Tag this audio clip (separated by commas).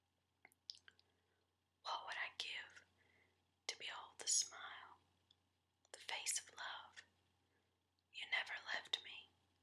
Whispering, Speech, people whispering